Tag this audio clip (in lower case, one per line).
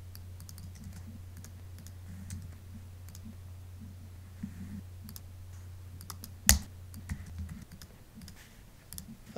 clicking
speech
inside a small room